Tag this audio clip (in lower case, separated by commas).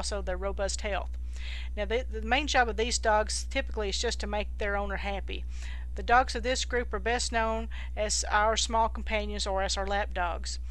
speech